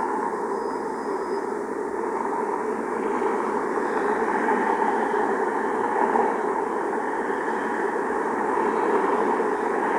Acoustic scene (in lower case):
street